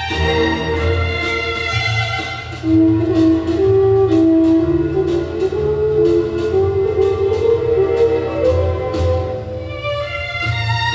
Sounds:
background music
tender music
music

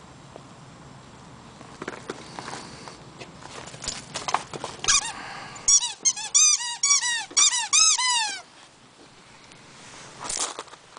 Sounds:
dog
animal
pets

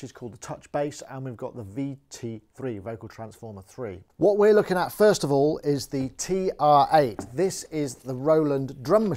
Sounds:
speech

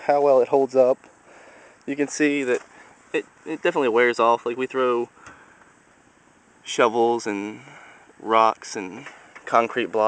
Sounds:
speech

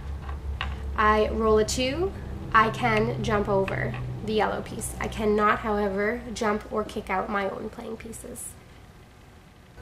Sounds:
inside a small room
speech

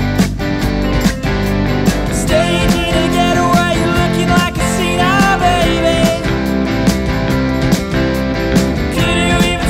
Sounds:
music

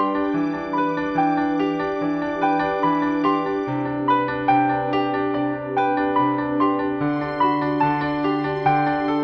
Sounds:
music

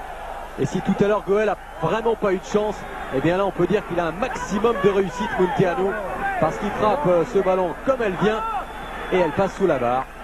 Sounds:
speech

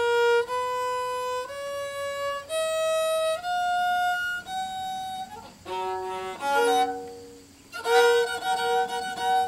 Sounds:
musical instrument
music
fiddle

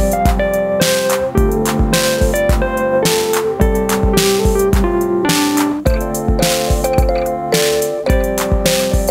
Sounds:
playing synthesizer

